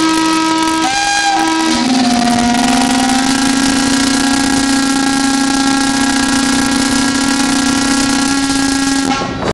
Ringing of a large whistle with loud vibrations